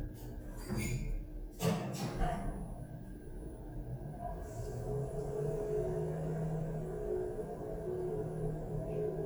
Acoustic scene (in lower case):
elevator